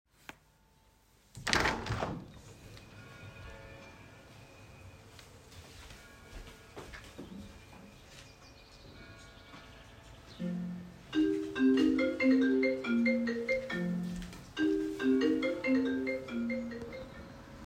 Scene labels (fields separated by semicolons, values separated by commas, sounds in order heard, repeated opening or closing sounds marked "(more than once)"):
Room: bedroom; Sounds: window, footsteps, phone ringing